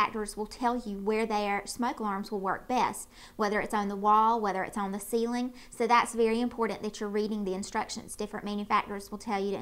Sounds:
Speech

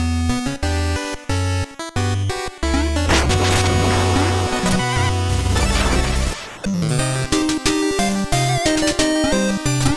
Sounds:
Music

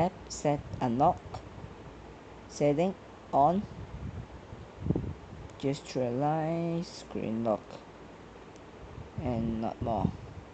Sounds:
Speech

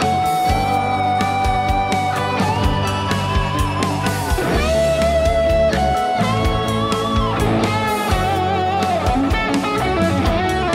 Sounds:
Music, Musical instrument, Electric guitar

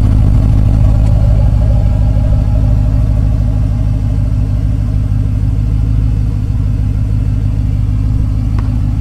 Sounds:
outside, urban or man-made, Car, Vehicle

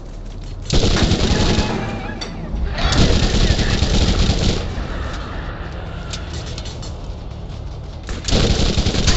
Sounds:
Speech

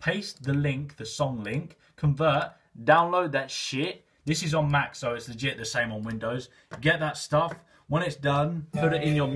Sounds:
Speech, Music

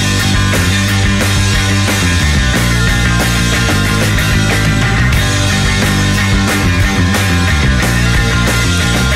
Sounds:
Music, Progressive rock

